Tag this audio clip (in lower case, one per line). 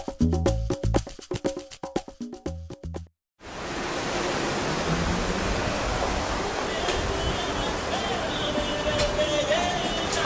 music
outside, urban or man-made